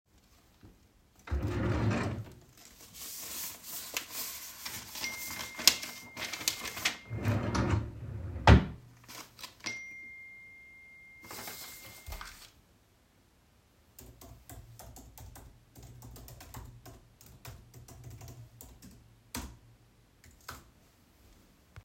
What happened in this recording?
I opened the drawer. While checking some papers, got a couple of phone notifications. After closing the drawer, went back to typing on my keyboard